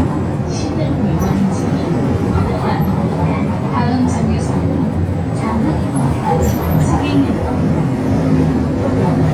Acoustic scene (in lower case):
bus